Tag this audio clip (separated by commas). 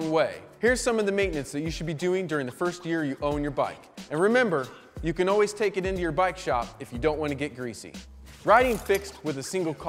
Music, Speech